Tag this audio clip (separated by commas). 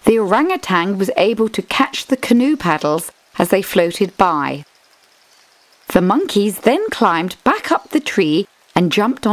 Speech